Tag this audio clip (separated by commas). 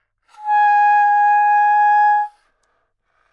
Music, Musical instrument, woodwind instrument